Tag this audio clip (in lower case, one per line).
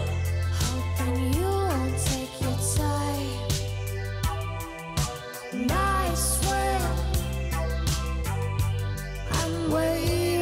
music